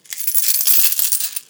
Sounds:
Domestic sounds, Coin (dropping)

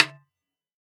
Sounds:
Percussion, Music, Snare drum, Musical instrument, Drum

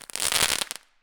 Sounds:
Explosion, Fireworks

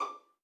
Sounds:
Music, Musical instrument, Bowed string instrument

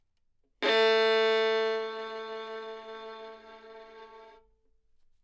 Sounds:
Bowed string instrument, Musical instrument, Music

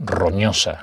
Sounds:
Speech, man speaking, Human voice

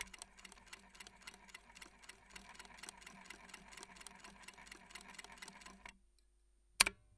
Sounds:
Mechanisms

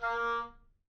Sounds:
woodwind instrument, Musical instrument, Music

